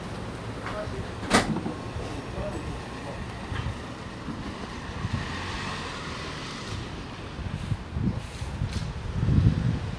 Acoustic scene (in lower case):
residential area